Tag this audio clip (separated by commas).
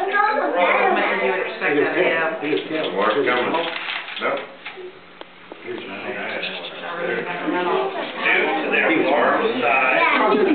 Speech